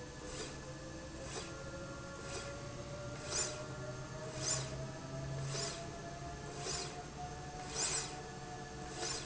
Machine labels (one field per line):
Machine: slide rail